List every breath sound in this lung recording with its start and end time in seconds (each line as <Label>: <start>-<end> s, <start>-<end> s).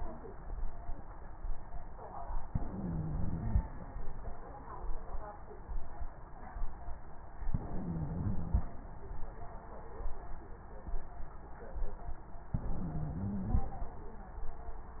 Inhalation: 2.47-3.63 s, 7.49-8.64 s, 12.52-13.68 s
Crackles: 2.47-3.63 s, 7.49-8.64 s, 12.52-13.68 s